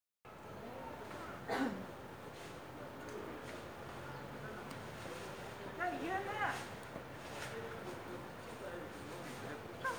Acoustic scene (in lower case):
residential area